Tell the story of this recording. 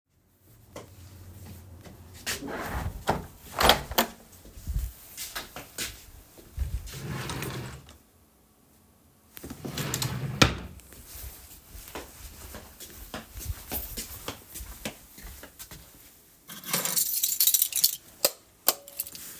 I go to the window, close it, go to the closet and open one of the drawers, then go to the door and take the keys, then open the door and go out